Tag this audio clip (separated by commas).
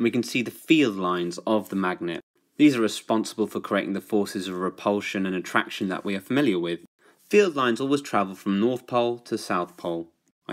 monologue, Speech